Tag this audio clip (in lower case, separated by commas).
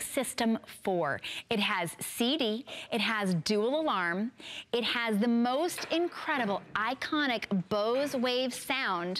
speech